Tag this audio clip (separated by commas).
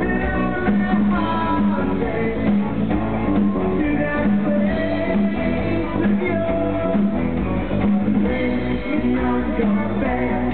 Music, Rock and roll, Singing